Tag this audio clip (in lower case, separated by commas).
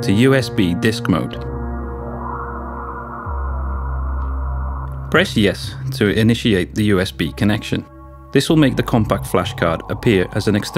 music, speech